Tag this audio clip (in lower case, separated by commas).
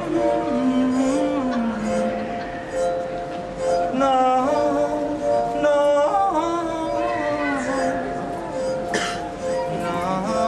chink, music